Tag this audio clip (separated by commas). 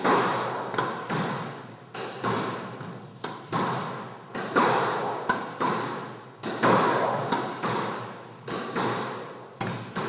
playing squash